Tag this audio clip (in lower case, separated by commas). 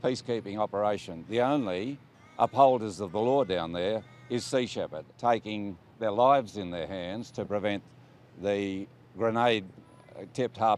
speech